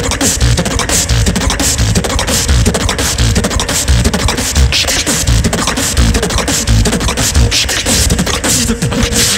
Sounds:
beat boxing

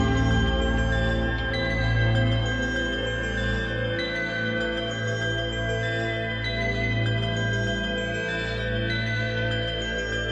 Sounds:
Music

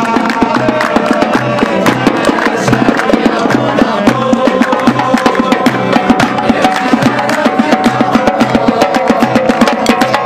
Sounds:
Musical instrument, Music, Bass guitar, Guitar

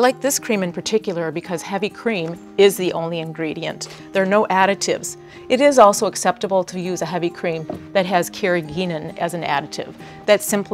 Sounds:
Speech, Music

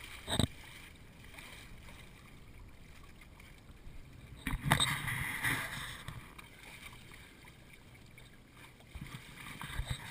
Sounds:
Boat, surf, Ocean

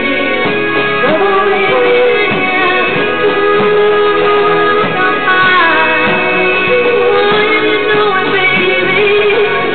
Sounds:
Music

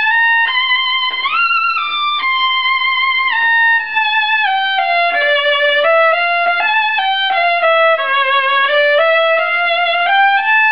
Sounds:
Violin, Music, Musical instrument

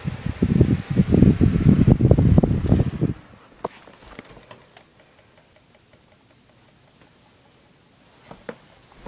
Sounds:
Mechanical fan

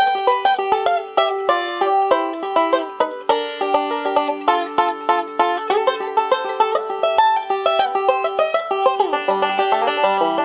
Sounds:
Music

